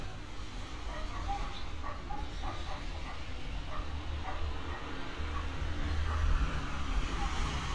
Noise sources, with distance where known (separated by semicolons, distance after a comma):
dog barking or whining, far